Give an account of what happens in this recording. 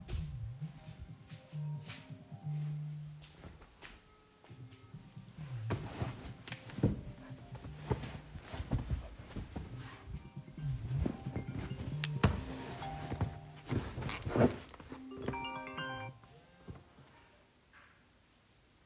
The phone starts ringing. I move pillows. I stop moving pillows and the phone stops ringing.